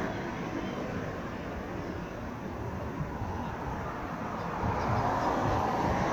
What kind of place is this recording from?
street